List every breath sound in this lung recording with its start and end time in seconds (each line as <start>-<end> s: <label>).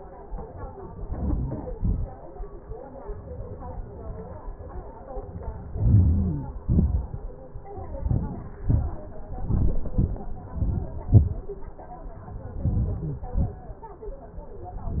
1.12-1.74 s: inhalation
1.79-2.18 s: exhalation
5.73-6.55 s: inhalation
6.71-7.14 s: exhalation
8.08-8.61 s: inhalation
8.68-9.18 s: exhalation
9.55-9.85 s: inhalation
9.92-10.20 s: exhalation
10.63-11.02 s: inhalation
11.10-11.42 s: exhalation
12.65-13.30 s: inhalation
13.40-13.81 s: exhalation